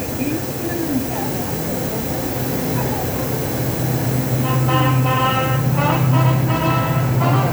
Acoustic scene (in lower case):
subway station